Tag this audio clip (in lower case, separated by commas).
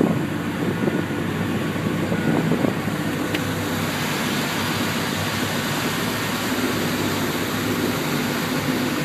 motorboat